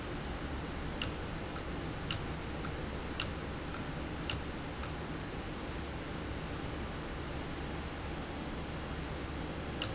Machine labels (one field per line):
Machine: valve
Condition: abnormal